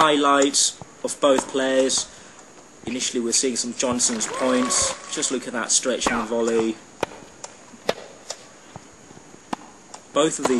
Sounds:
Speech

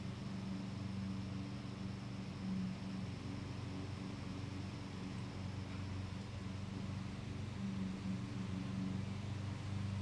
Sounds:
outside, urban or man-made

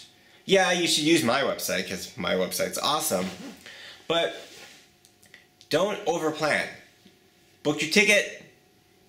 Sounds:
Speech

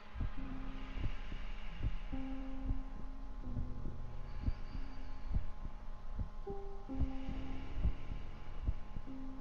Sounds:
Hum, Heart sounds, Throbbing

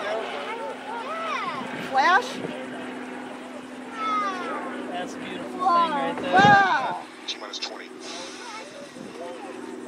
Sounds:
Speech

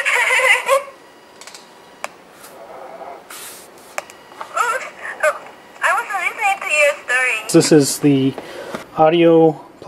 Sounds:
Speech, inside a small room

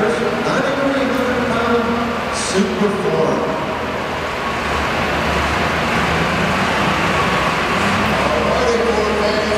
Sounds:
Speech, Vehicle

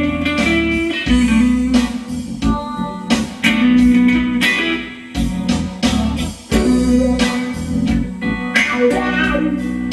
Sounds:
Music, Electronic organ, Musical instrument, Plucked string instrument, Guitar

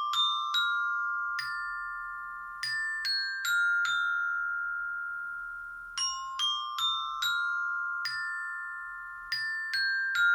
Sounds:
playing glockenspiel

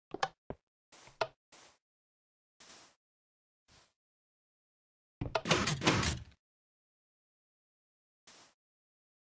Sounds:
Slam, Sliding door, Door

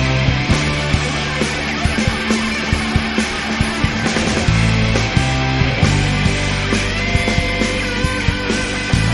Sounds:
Music, Progressive rock, Pop music

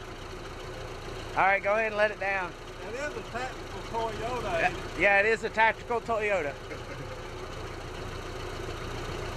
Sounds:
Car, Vehicle, Speech

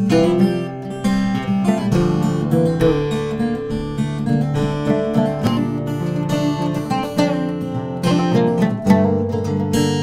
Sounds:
Musical instrument, Music, Guitar, Plucked string instrument

